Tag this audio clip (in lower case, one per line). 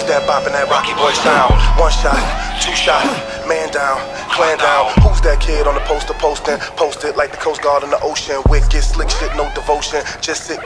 music
electronica